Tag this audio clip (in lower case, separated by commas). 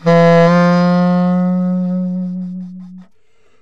musical instrument, music, wind instrument